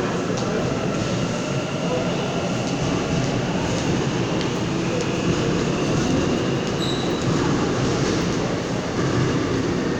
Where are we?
in a subway station